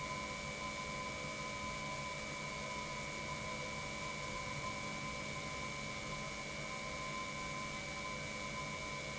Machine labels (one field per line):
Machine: pump